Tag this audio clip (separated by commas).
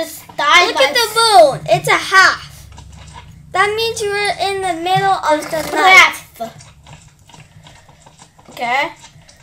Speech, Computer keyboard